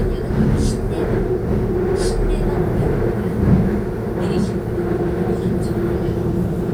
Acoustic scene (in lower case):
subway train